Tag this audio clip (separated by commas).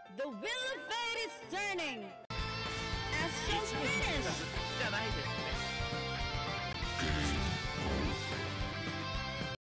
Music, Speech